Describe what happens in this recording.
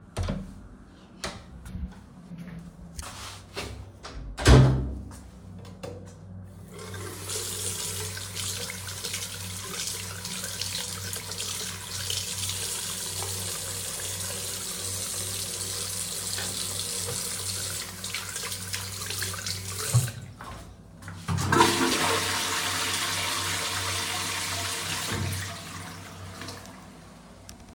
I opened the door, and entered the bathroom. I washed my hands, turned off the tap and flushed the toilet.